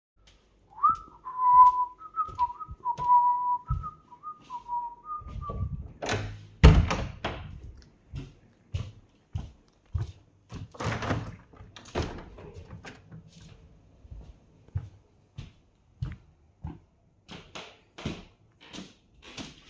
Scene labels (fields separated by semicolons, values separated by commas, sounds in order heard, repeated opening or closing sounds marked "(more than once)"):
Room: hallway, living room; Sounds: footsteps, door, window